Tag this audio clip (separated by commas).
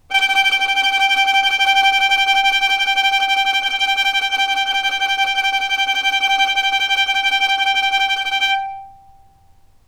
Music, Bowed string instrument, Musical instrument